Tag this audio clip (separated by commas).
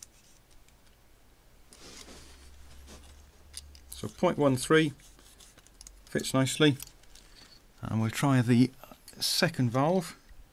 Speech